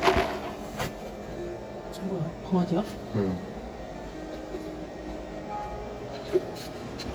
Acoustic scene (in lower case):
cafe